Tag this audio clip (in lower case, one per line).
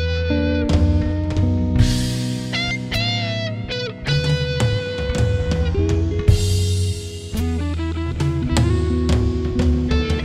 music